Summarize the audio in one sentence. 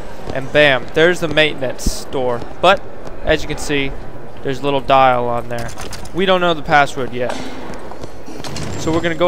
Rustling and humming with a man speaking followed by clicking